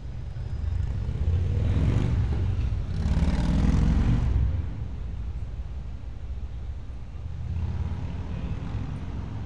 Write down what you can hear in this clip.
medium-sounding engine